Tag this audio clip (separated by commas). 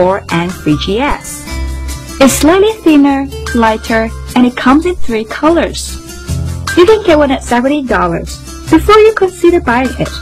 Speech, Music